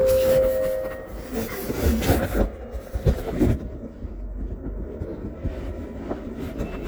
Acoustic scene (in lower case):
elevator